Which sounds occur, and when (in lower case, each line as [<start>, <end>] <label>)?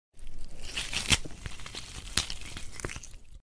[0.13, 3.41] tearing